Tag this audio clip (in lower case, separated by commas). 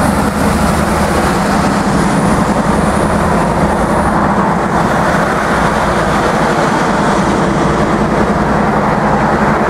rail transport, vehicle, train